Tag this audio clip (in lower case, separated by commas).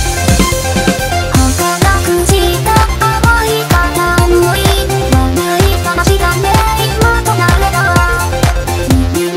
music, sampler